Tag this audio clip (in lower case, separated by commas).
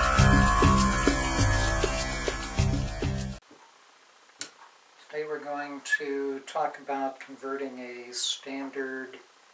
speech, music